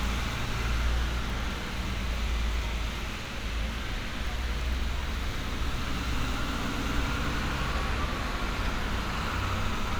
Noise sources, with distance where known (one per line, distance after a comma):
large-sounding engine, near